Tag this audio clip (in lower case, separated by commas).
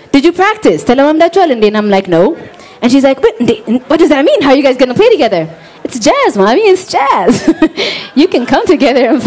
speech